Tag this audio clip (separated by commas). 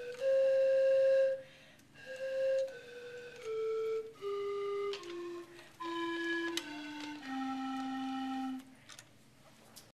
Music